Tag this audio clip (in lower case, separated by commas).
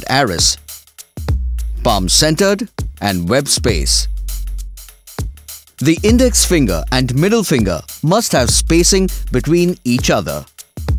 speech, music